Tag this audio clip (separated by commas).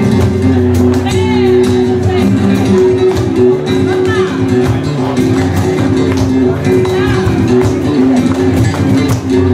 Flamenco, Speech, Music